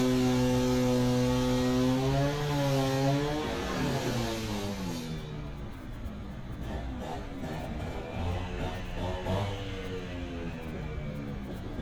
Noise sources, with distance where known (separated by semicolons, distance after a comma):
chainsaw, near